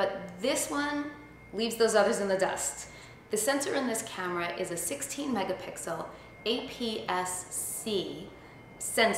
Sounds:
speech

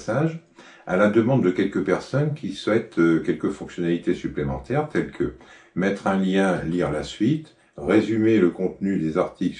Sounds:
speech

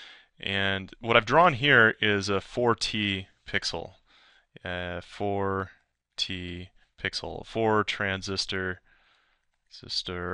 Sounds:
speech

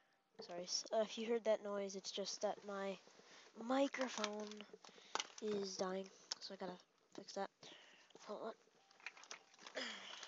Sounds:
speech

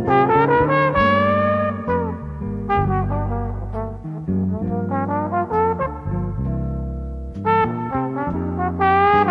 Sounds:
playing trombone

